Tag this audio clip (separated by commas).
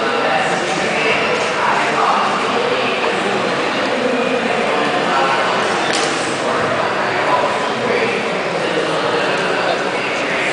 Speech